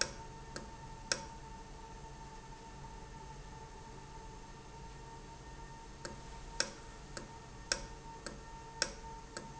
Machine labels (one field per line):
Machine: valve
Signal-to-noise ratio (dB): 6 dB